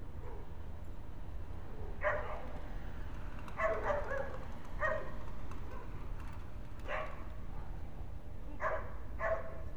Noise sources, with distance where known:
dog barking or whining, near

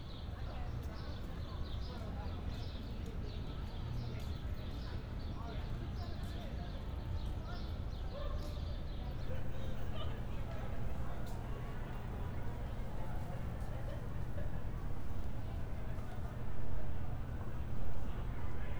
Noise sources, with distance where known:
person or small group talking

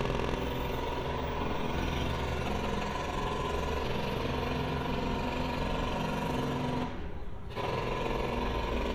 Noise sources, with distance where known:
jackhammer

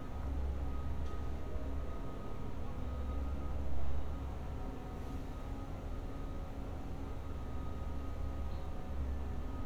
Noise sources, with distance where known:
unidentified alert signal, far

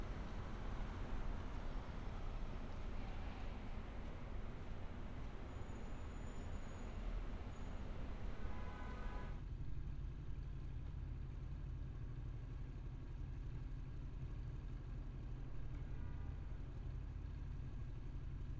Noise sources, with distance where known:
car horn, far

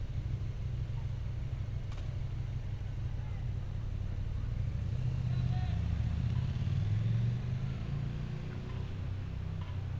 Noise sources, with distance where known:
medium-sounding engine

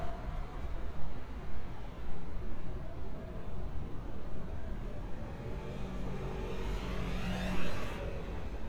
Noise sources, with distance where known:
engine of unclear size, far

